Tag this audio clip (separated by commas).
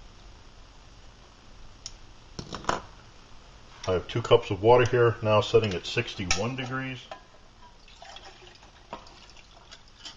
Speech